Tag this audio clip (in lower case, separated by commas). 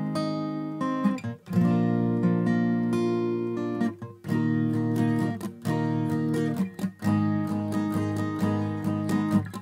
music, acoustic guitar, musical instrument, plucked string instrument, strum, guitar